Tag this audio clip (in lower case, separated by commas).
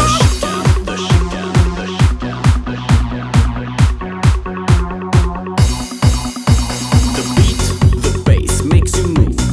trance music, techno, music